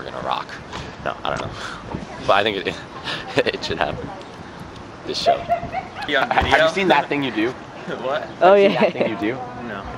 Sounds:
Speech

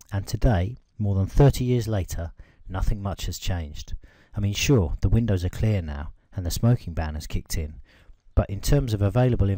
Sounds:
Speech

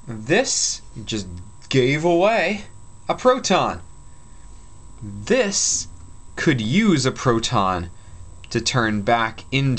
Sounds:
monologue, Speech

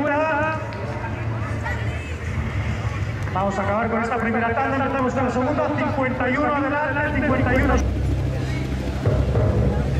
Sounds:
outside, urban or man-made, Speech

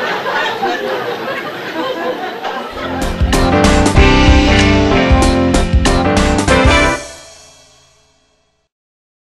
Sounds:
Music

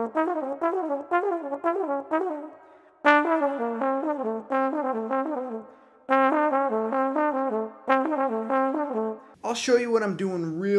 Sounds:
playing trombone

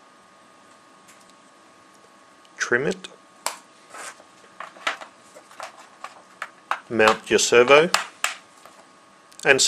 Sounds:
Speech

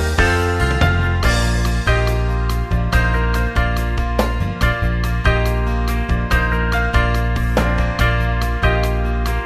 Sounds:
Music

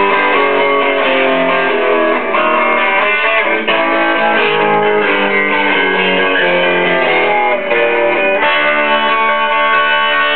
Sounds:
Guitar, Musical instrument, Music

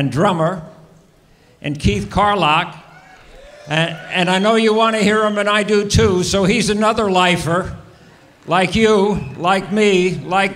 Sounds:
Speech

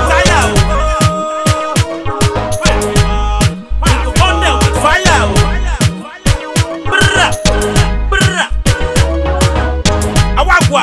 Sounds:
Music, Hip hop music, Afrobeat

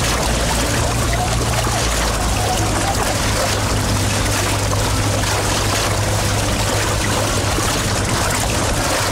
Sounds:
kayak, Boat, canoe

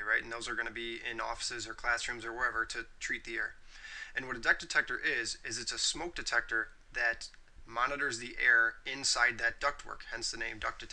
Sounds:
Narration, Speech

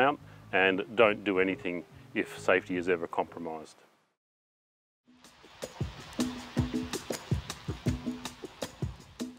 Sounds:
Music, Speech

